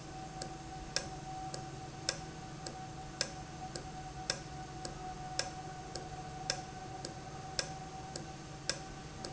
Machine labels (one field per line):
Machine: valve